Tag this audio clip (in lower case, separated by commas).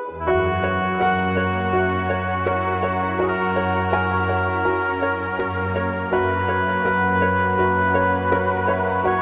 music, background music